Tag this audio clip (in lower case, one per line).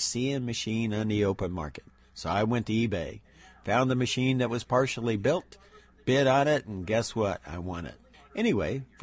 speech